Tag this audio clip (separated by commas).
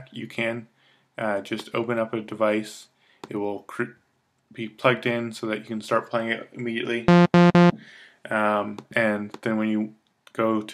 Speech